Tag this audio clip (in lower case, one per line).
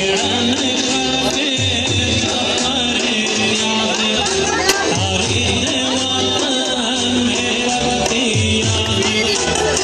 music
speech